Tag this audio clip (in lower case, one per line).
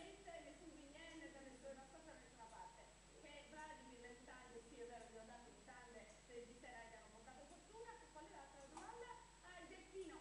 speech